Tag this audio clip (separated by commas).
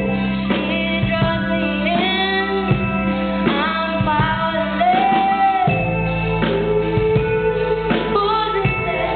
Music, Female singing